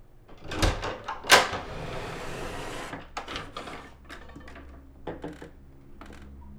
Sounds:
sliding door, home sounds, door

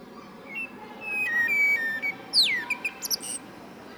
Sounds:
animal, wild animals, bird

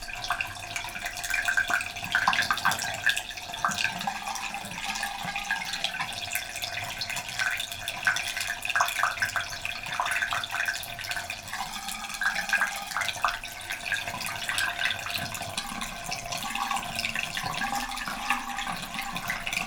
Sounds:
water, gurgling, bathtub (filling or washing), home sounds

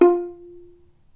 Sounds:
bowed string instrument, musical instrument, music

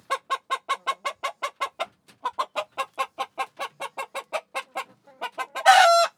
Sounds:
fowl, animal, rooster, livestock

